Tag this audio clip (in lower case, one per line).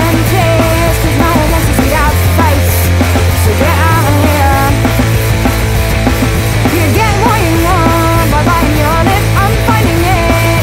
music
funk